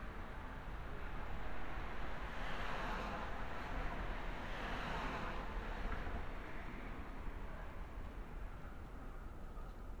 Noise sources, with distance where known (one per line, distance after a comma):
medium-sounding engine